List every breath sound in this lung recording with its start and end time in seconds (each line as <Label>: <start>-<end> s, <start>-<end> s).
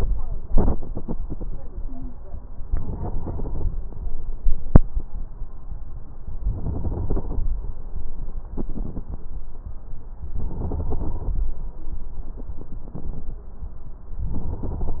Inhalation: 2.62-3.75 s, 6.34-7.47 s, 10.33-11.47 s, 14.31-15.00 s
Stridor: 1.82-2.20 s